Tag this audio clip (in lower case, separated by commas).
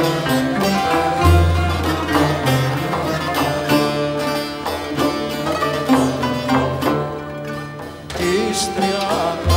traditional music, music